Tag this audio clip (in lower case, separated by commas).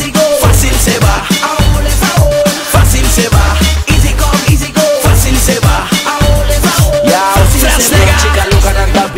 music, exciting music